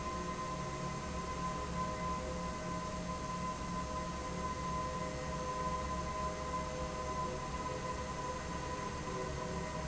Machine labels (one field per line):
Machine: fan